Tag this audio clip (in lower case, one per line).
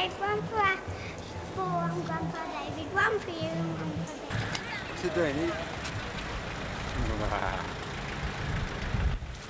speech